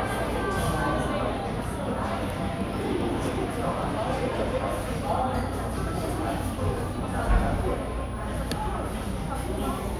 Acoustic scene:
cafe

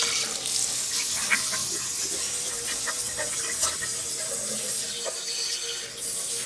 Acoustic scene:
restroom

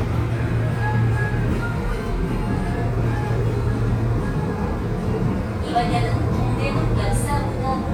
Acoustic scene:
subway train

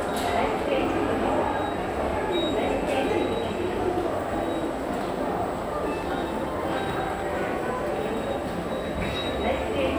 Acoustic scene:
subway station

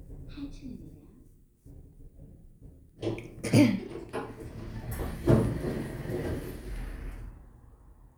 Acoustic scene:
elevator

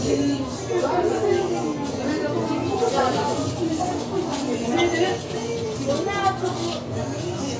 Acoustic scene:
restaurant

